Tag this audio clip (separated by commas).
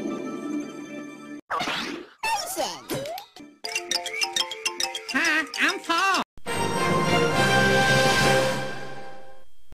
Music, Speech